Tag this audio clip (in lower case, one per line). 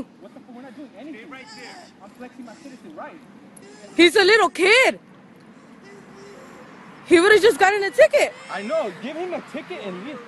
speech